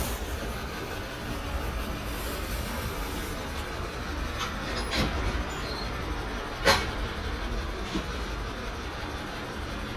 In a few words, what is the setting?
residential area